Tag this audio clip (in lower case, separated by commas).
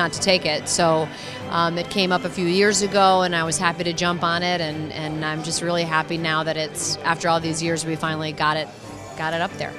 music, speech